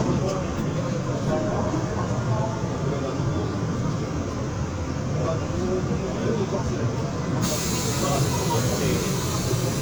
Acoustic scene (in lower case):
subway train